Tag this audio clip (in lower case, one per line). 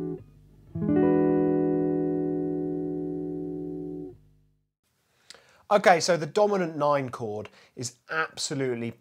guitar
plucked string instrument
strum
musical instrument
speech
music